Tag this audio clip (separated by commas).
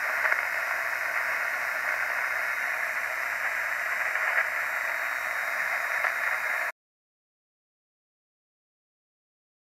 Radio